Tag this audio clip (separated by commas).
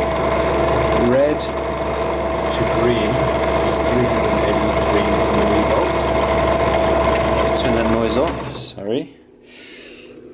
Speech